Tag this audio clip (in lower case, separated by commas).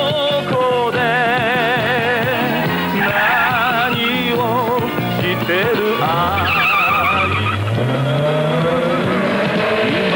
music